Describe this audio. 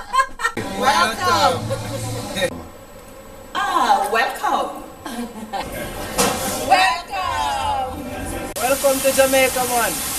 A woman laughs then several women speak and then a man speaks